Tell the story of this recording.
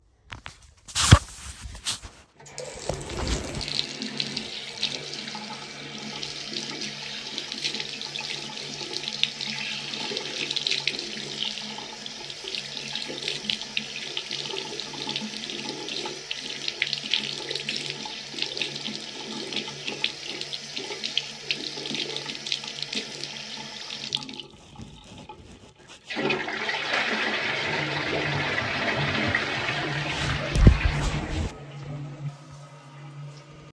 I recorded this scene in the bathroom. First I washed my hands then I flushed the toilet.